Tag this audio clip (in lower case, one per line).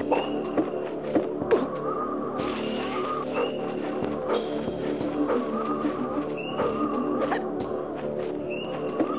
music
outside, rural or natural